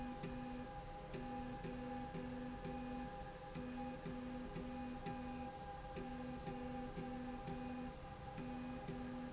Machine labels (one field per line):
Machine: slide rail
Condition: normal